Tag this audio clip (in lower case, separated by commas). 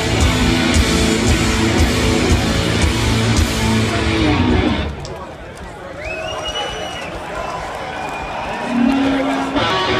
music, speech